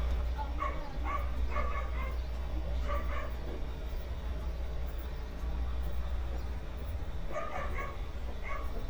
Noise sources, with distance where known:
dog barking or whining

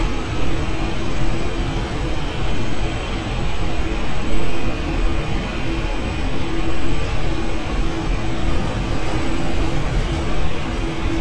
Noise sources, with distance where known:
jackhammer, near

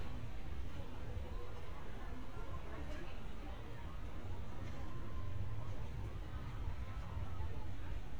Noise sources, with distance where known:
unidentified human voice

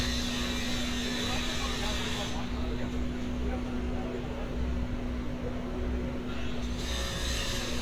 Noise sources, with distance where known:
person or small group talking, near

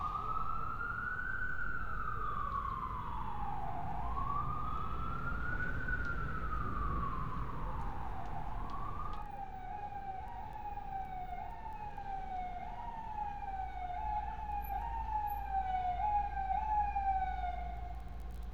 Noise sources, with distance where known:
siren

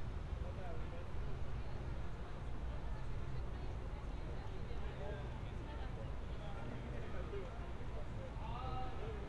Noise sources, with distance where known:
background noise

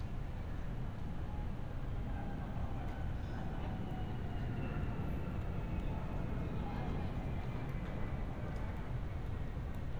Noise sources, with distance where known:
large-sounding engine, far; person or small group talking, far

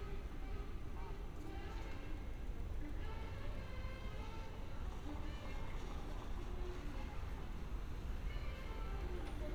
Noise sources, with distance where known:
music from an unclear source, far

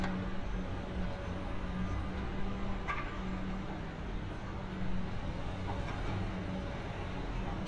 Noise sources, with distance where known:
engine of unclear size; non-machinery impact

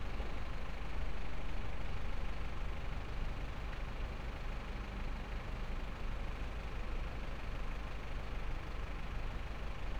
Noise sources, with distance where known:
large-sounding engine

